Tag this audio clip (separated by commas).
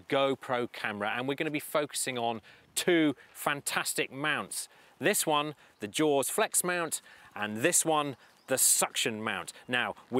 Speech